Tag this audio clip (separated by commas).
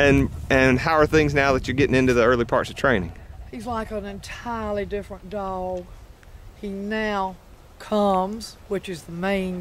Animal, Domestic animals, Dog, Speech